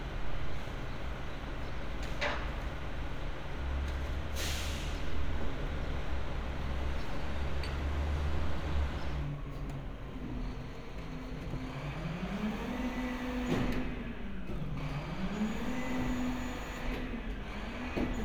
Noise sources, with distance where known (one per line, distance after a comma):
large-sounding engine